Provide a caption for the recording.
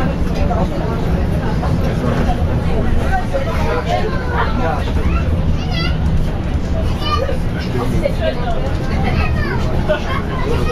A muffled bus engine running as a group of people talk while a kid yells in the background